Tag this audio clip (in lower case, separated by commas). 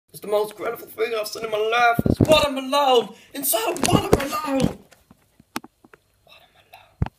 speech